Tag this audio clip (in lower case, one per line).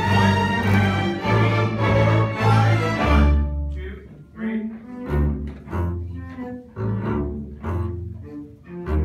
playing double bass